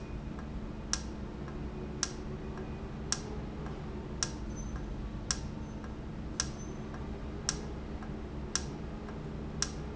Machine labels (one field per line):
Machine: valve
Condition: normal